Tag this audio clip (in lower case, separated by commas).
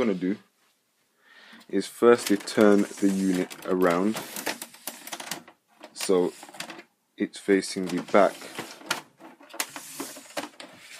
inside a small room, speech